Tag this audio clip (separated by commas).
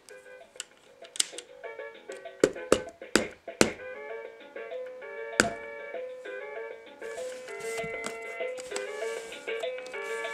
Music